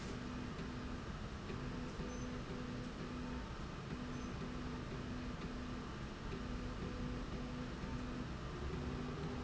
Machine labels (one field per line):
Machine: slide rail